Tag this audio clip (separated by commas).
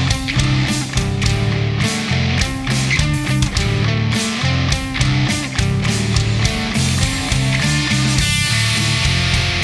Grunge, Heavy metal, Music, Rock music, Progressive rock